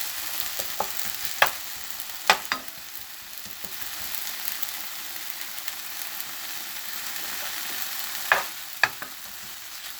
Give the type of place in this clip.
kitchen